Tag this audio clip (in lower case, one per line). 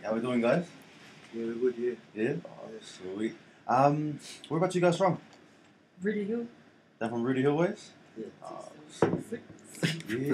speech